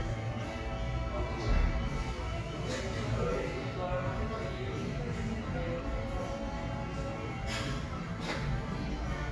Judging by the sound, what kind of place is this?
cafe